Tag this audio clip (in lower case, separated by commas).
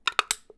crushing